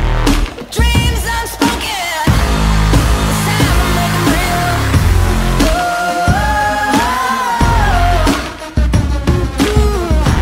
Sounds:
music

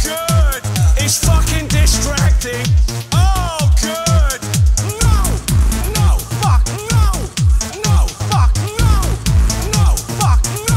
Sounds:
pop music
music

